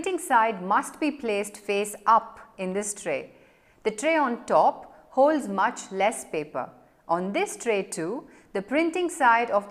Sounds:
Speech

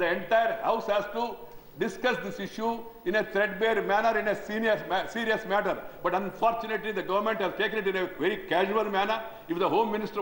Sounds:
Male speech, Speech, monologue

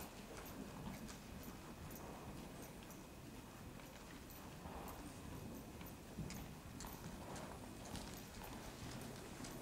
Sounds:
Horse, Clip-clop, Animal

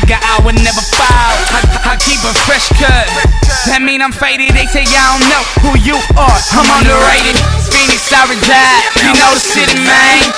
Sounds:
Music, Rhythm and blues

